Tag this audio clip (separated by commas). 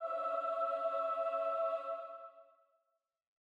Singing, Human voice, Music, Musical instrument